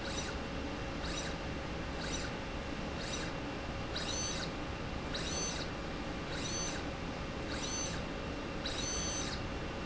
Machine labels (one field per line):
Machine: slide rail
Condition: abnormal